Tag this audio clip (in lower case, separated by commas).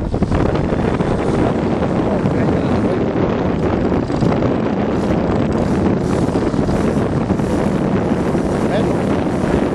vehicle, speech